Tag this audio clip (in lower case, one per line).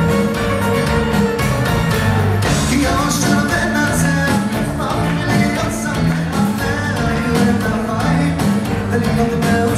male singing
music